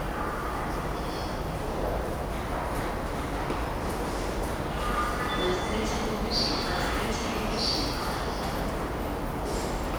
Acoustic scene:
subway station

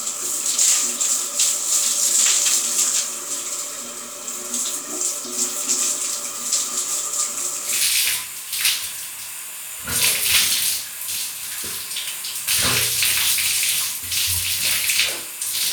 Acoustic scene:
restroom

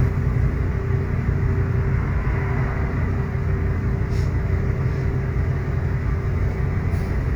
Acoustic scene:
bus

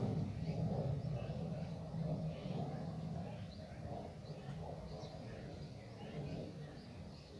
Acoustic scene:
park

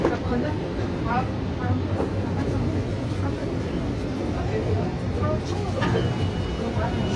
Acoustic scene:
subway train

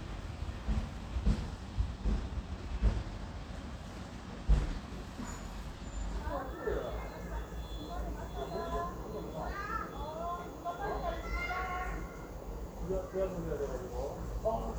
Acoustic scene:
residential area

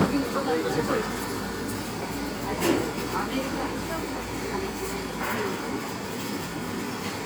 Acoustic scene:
cafe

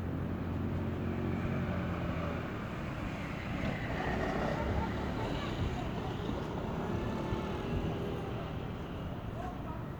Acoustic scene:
residential area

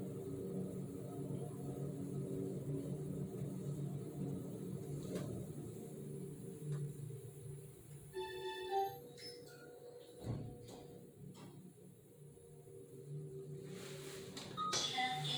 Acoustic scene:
elevator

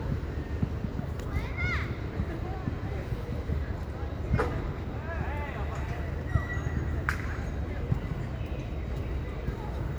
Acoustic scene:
park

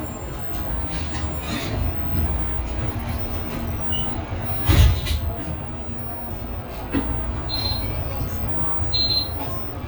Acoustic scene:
bus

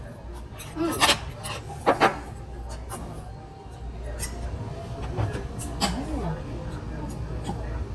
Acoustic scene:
restaurant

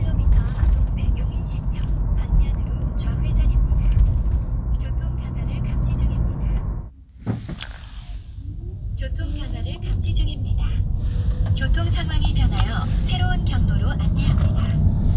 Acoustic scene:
car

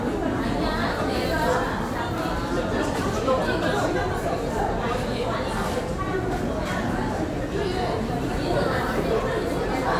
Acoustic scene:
crowded indoor space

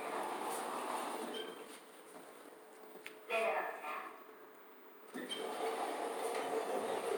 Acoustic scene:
elevator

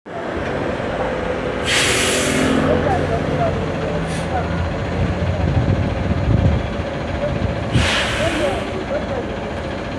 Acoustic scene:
street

